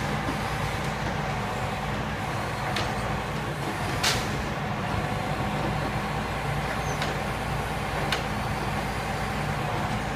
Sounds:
vehicle, truck

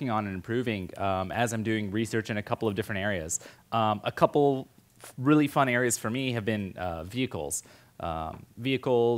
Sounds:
speech

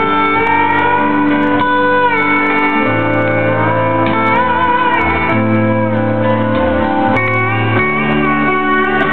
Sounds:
music

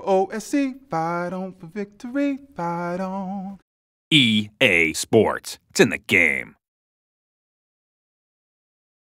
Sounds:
male singing, speech

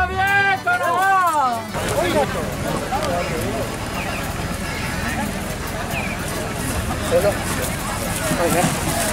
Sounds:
music, speech

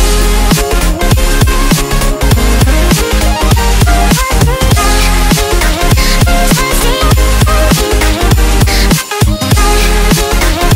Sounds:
music

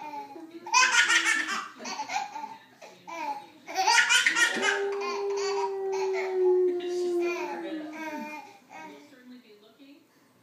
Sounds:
baby laughter

